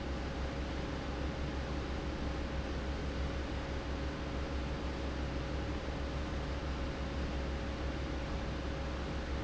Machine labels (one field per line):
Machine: fan